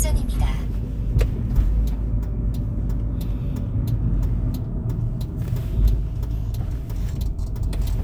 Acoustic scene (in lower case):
car